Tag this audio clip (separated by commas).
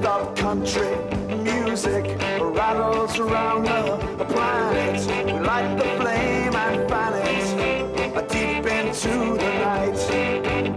Country, Music